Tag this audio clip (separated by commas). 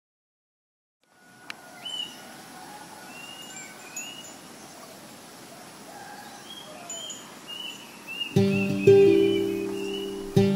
Bird, Music, outside, rural or natural